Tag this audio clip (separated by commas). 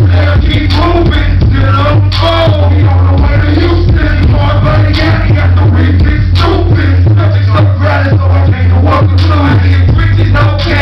Music